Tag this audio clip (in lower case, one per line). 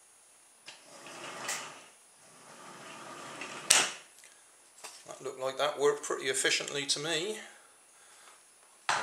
inside a small room
speech